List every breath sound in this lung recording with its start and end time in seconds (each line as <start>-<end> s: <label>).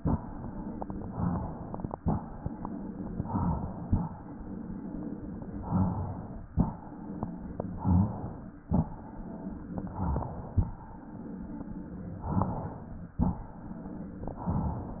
0.00-1.14 s: inhalation
1.14-1.94 s: exhalation
1.99-3.24 s: inhalation
3.28-4.08 s: exhalation
4.12-5.61 s: inhalation
5.69-6.49 s: exhalation
6.56-7.79 s: inhalation
7.83-8.63 s: exhalation
8.69-9.76 s: inhalation
9.81-10.61 s: exhalation
10.81-12.23 s: inhalation
12.29-13.09 s: exhalation
13.24-14.28 s: inhalation
14.29-15.00 s: exhalation